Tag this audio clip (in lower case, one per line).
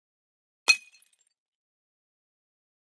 glass
shatter